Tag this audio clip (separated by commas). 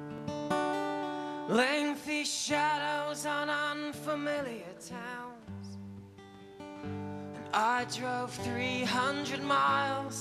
Music